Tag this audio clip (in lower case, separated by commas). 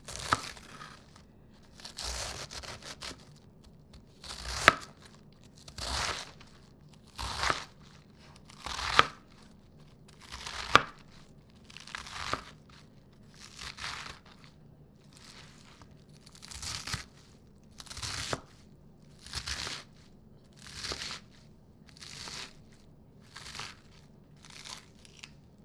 home sounds